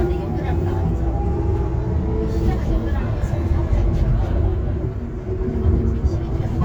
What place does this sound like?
bus